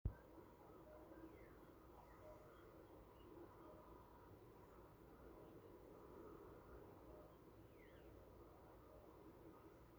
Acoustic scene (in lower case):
park